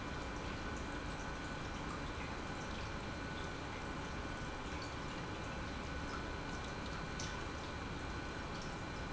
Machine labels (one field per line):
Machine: pump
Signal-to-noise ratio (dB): 0 dB